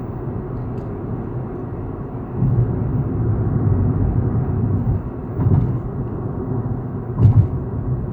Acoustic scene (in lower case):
car